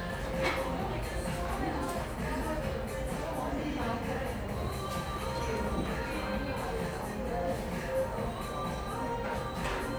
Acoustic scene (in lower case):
cafe